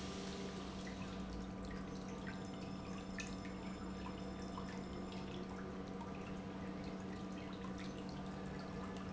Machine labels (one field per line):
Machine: pump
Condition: normal